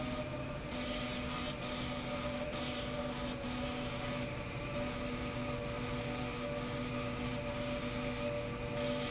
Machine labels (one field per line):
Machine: slide rail